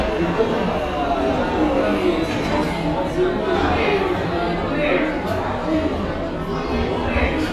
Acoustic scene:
cafe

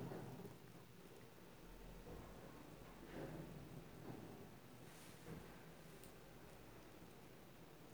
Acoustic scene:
elevator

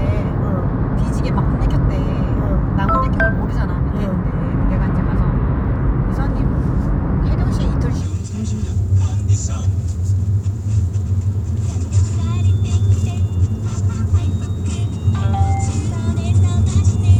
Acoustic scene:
car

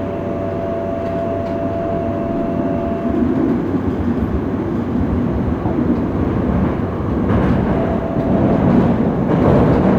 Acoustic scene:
subway train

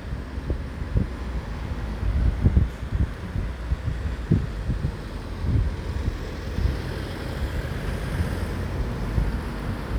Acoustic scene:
street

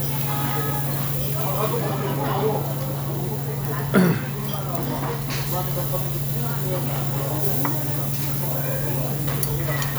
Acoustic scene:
restaurant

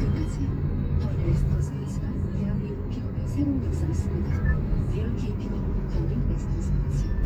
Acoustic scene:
car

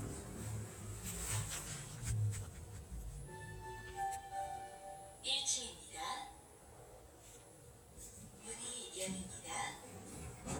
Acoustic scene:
elevator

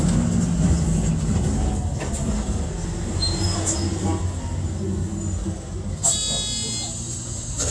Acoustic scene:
bus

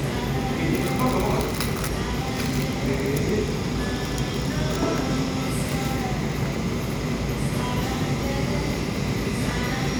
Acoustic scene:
cafe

